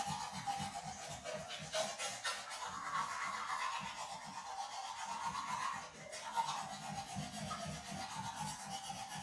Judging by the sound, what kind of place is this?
restroom